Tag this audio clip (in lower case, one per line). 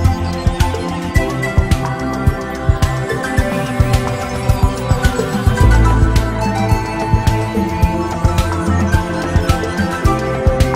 music